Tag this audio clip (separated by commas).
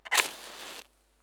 Fire